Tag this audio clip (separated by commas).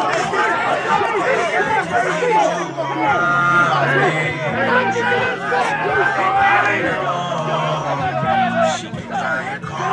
Speech, Music, inside a public space